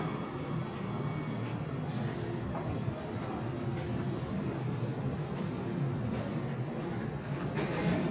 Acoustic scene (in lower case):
subway station